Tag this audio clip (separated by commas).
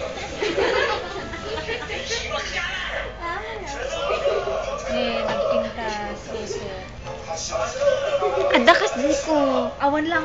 Speech